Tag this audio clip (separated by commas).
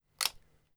Mechanisms, Camera